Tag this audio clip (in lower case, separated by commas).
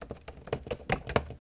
computer keyboard, typing, home sounds